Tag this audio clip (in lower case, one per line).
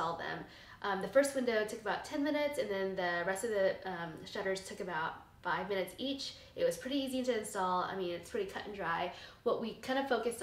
speech